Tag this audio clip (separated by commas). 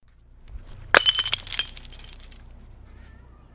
Shatter, Crushing, Glass